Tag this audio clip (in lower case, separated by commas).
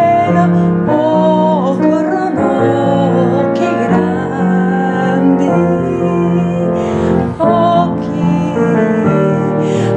music, lullaby